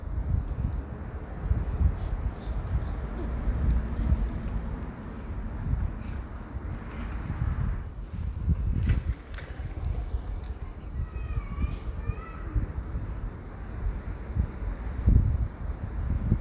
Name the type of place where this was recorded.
residential area